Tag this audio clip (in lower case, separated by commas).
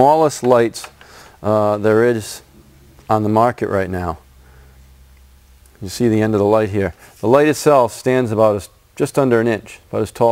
speech